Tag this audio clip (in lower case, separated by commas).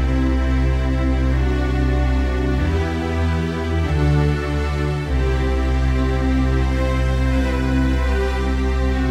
music